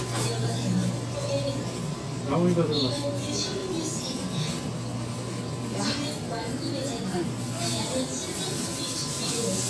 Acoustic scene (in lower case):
crowded indoor space